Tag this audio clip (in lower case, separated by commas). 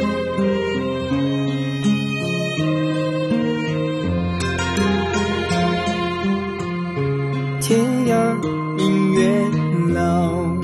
music